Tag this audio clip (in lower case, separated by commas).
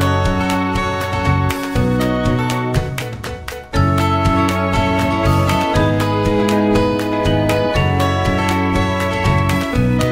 music